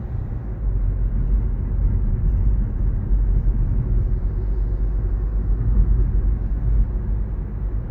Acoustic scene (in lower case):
car